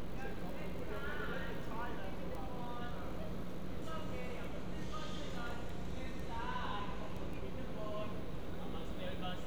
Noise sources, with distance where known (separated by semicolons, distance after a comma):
background noise